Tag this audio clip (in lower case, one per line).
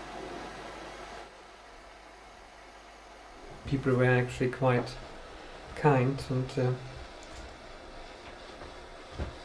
speech